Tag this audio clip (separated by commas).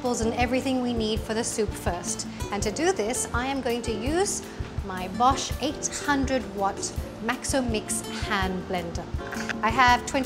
Speech, Music